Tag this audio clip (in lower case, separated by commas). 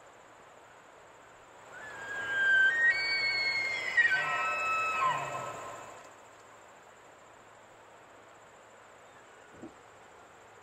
elk bugling